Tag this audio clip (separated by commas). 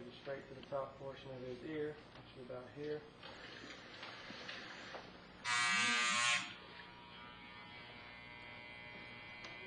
Speech, electric razor, inside a small room